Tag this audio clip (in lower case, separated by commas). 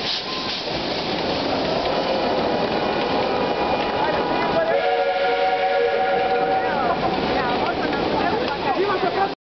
speech